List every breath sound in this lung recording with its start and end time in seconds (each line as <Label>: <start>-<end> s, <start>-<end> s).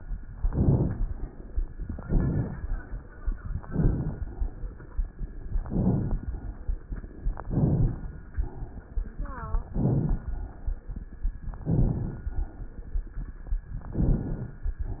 Inhalation: 0.38-1.04 s, 1.94-2.60 s, 3.59-4.25 s, 5.64-6.30 s, 7.50-8.16 s, 9.71-10.38 s, 11.63-12.30 s, 13.91-14.57 s
Crackles: 0.38-1.04 s, 1.94-2.60 s, 3.59-4.25 s, 5.64-6.30 s, 7.50-8.16 s, 9.71-10.38 s, 11.63-12.30 s, 13.91-14.57 s